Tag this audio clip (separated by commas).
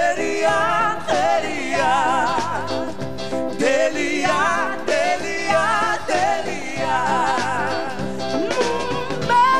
Music